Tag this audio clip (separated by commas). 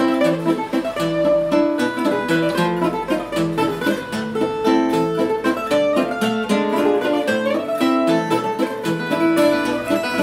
Mandolin, Music, Plucked string instrument, Ukulele, Musical instrument